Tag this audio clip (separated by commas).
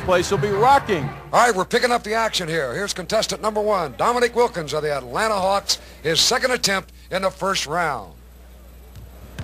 Speech